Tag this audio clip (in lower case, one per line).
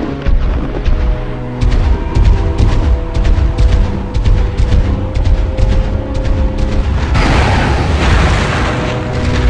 music
boom